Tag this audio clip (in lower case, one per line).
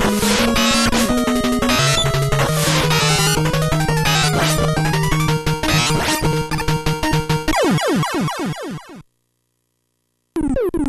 music